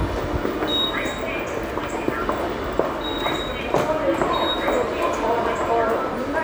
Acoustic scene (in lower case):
subway station